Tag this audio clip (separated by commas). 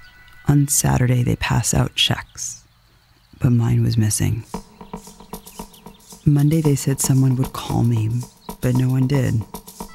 Environmental noise